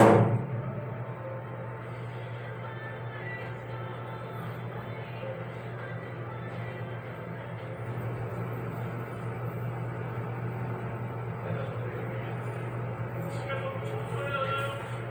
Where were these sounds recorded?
in an elevator